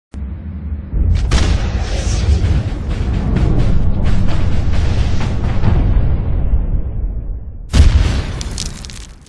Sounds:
Music, Crack

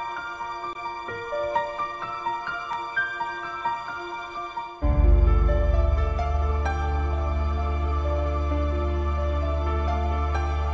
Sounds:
Music, Background music, Theme music, New-age music

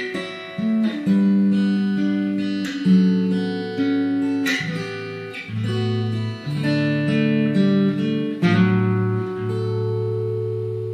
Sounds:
Music

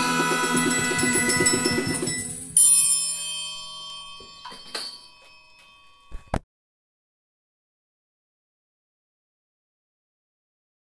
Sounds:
Music, Musical instrument

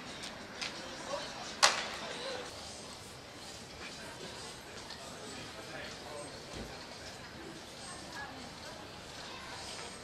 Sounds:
Speech

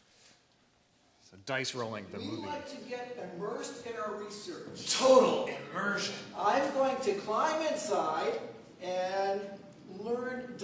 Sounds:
Male speech

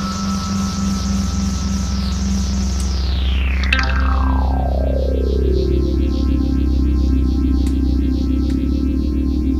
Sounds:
Music, Progressive rock

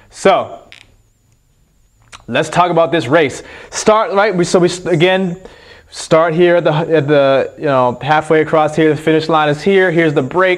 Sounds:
Speech, inside a small room

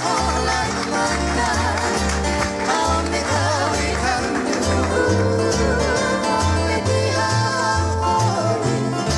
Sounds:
Music

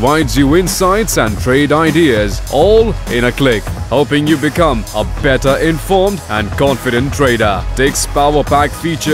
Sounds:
Speech, Music

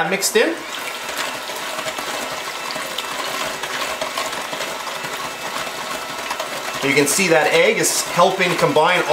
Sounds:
Stir

